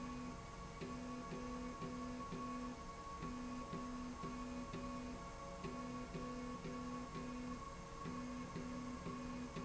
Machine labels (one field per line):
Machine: slide rail